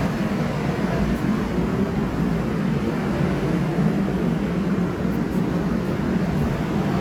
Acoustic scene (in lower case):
subway station